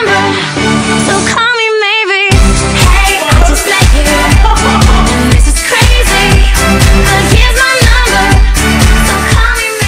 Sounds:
inside a small room, Music

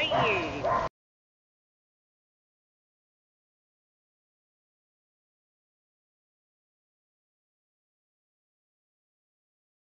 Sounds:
Bow-wow

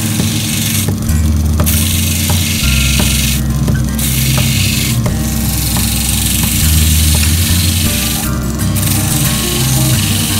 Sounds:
Music, inside a small room

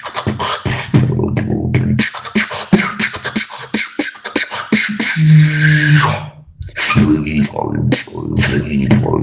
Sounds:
beat boxing

